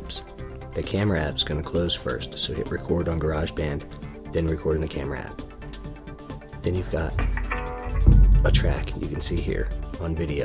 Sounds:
speech, music

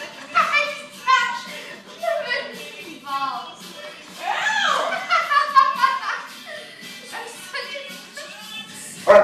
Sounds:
pets, music, speech, animal, dog

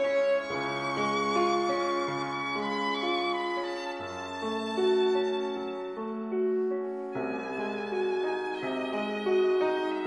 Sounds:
fiddle, music, musical instrument

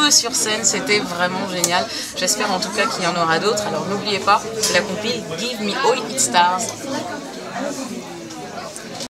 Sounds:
speech

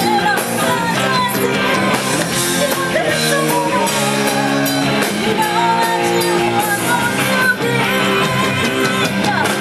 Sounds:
female singing, music

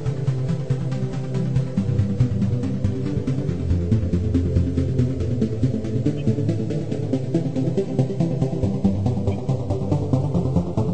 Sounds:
electronic music, music

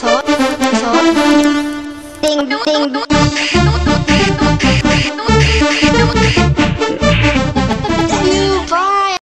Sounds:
speech, music

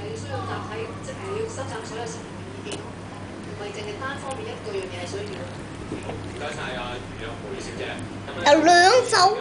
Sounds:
speech

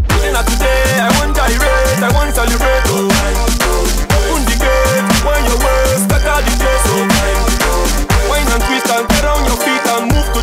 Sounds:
dubstep, electronic music, music

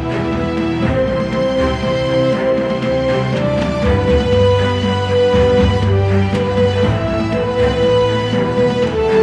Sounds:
theme music, music

